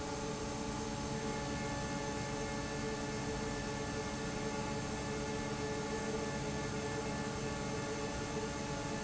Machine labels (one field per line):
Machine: fan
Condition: normal